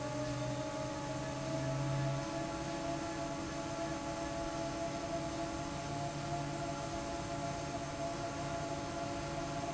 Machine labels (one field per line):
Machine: fan